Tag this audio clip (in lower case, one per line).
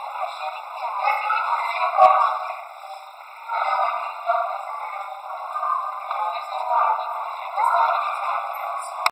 speech